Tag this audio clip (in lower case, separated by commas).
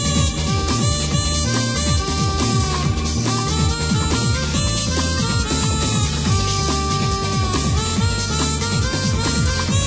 music, sound effect, roll